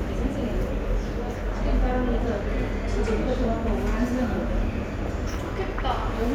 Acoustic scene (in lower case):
subway station